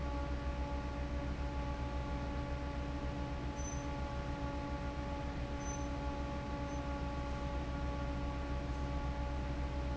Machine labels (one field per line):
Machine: fan